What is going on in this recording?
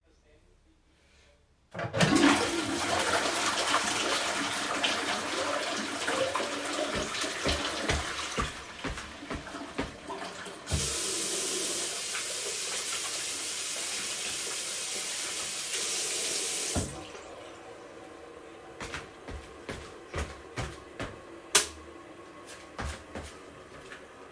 I flushed the toilet and walked to the sink while the water was still running. I turned on the tap to wash my hands and then closed it. I walked to the bathroom door, turned off the lights, and exited the room.